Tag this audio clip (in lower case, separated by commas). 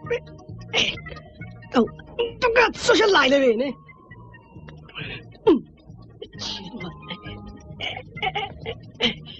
music, speech